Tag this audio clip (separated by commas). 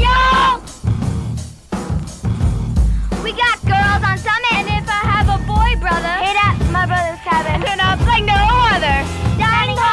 Speech, Music